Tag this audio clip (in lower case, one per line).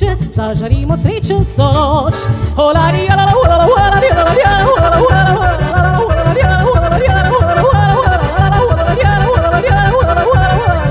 yodelling